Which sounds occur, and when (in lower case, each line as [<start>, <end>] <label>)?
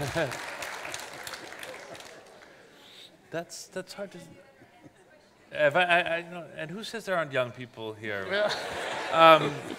[0.00, 0.34] man speaking
[0.00, 9.75] background noise
[0.31, 2.46] clapping
[2.42, 3.17] breathing
[3.34, 4.29] man speaking
[4.13, 5.54] human sounds
[5.47, 8.02] man speaking
[8.33, 9.75] laughter
[9.14, 9.62] man speaking